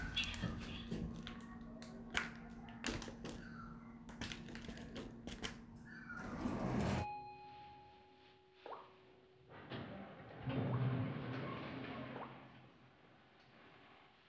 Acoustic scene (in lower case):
elevator